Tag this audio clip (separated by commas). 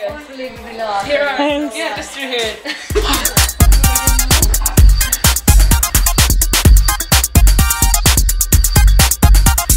Sampler